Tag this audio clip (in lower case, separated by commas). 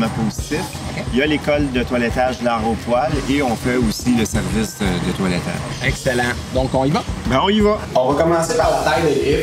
music, speech